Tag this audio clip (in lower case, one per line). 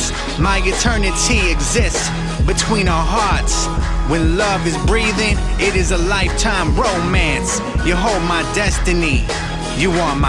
rapping
music